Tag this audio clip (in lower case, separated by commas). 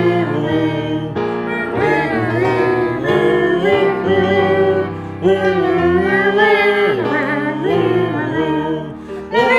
music, jingle (music)